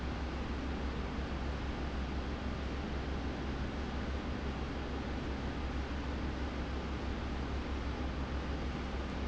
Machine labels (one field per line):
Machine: fan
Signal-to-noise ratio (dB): -6 dB